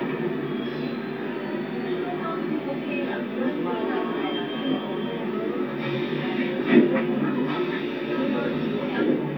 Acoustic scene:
subway train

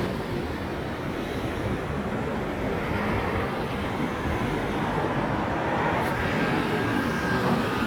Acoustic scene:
street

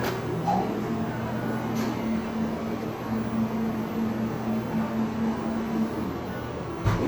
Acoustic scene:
cafe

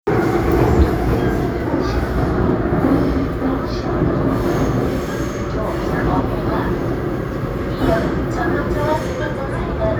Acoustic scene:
subway train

